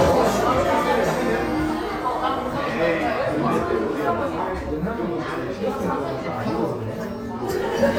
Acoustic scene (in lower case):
crowded indoor space